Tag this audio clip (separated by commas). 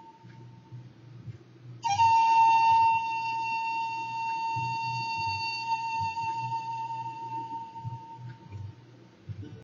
Flute